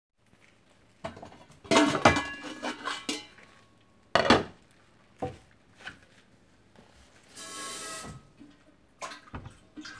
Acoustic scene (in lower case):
kitchen